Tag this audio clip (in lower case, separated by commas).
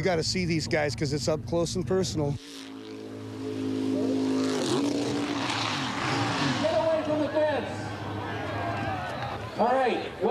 vehicle, motorboat, speech